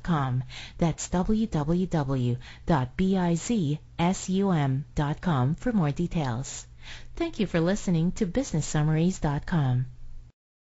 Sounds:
Speech

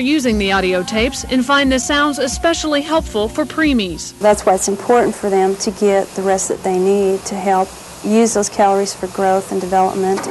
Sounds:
Music, Speech

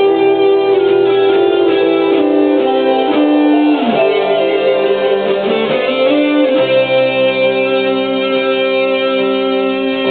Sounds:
Musical instrument, Music, Guitar, Electric guitar, Plucked string instrument, Strum

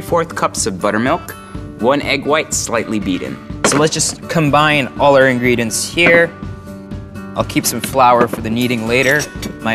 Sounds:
Speech, Music

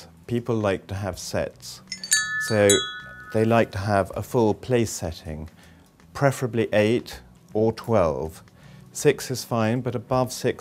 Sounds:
Speech, Music

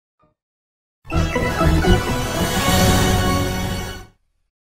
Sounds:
Techno, Music

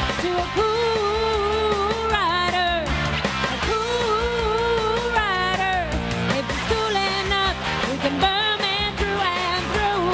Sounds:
Music, Female singing

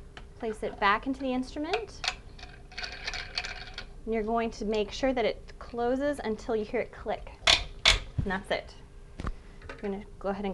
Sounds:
Speech, inside a small room

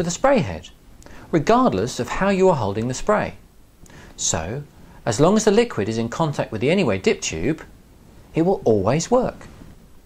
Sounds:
Speech

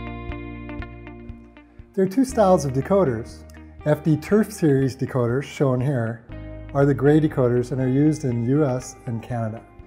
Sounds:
Music, Speech

